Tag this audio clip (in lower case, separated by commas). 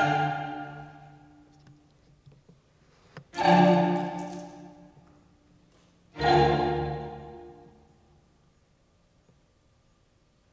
music